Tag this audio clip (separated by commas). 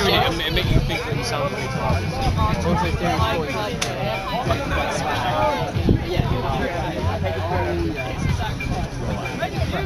Speech, Music